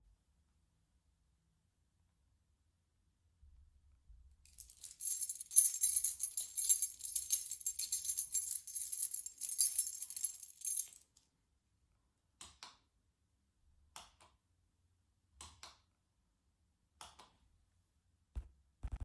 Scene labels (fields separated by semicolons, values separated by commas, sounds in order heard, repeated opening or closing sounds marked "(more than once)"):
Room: hallway; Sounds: keys, light switch